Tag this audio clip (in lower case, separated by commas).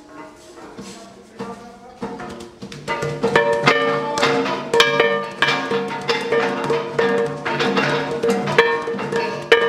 speech